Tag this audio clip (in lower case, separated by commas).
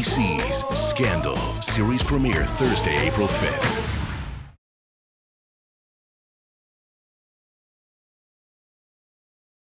speech, music